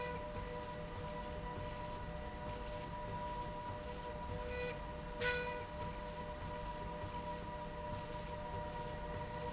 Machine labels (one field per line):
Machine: slide rail